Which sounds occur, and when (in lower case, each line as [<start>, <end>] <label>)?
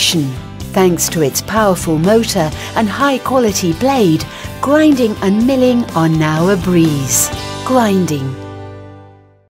[0.00, 0.24] woman speaking
[0.01, 9.45] music
[0.68, 2.43] woman speaking
[2.50, 2.69] breathing
[2.78, 4.22] woman speaking
[4.27, 4.52] breathing
[4.53, 7.33] woman speaking
[7.61, 8.40] woman speaking